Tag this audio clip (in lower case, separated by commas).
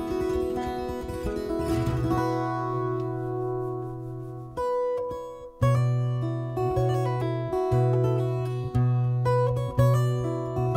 acoustic guitar, music, plucked string instrument